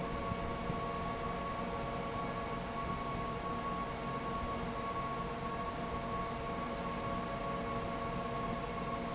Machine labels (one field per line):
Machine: fan